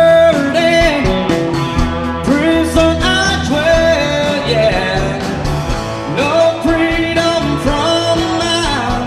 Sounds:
Music, Blues

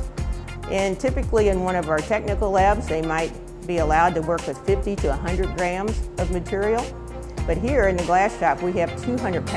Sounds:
Speech, Music

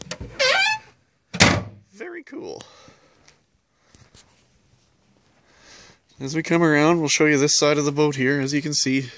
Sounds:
Speech, Door

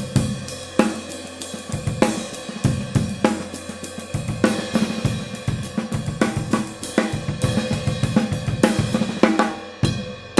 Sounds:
Bass drum, Drum, Percussion, Rimshot, Drum kit, Snare drum

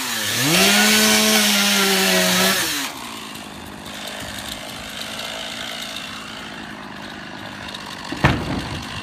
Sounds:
Chainsaw, chainsawing trees

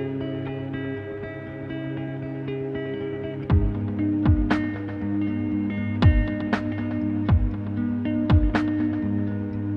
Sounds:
Music

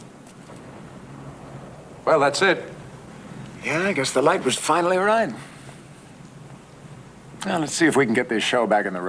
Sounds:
Speech

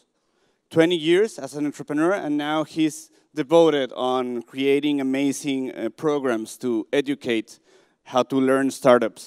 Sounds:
Speech

